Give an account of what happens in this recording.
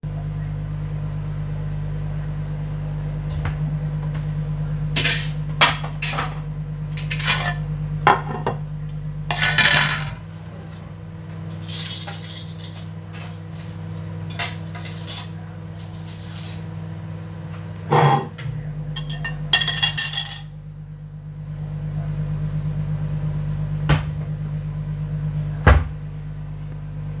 While the microwave was running, I opened the cupboard and took out some plates and cutlery while a lecture was running in the background.